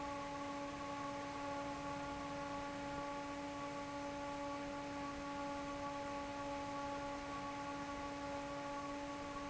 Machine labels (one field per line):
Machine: fan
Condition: normal